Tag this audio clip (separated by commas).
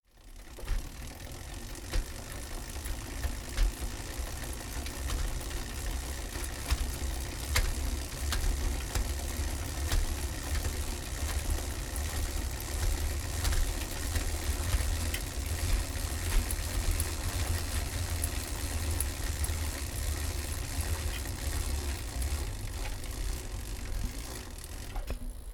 Bicycle, Vehicle